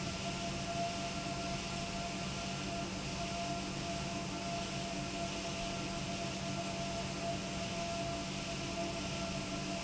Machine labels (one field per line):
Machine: pump